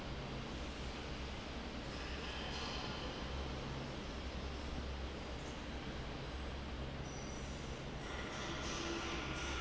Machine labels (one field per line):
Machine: fan